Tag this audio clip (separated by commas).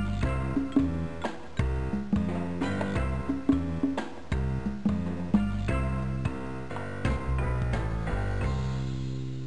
Music